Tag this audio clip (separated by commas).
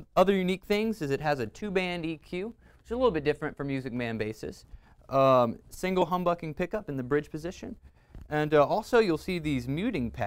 Speech